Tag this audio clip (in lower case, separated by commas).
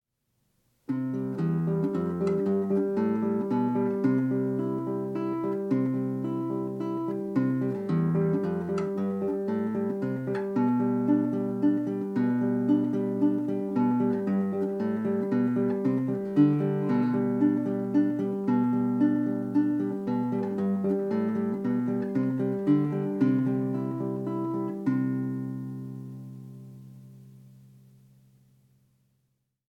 musical instrument, guitar, music, plucked string instrument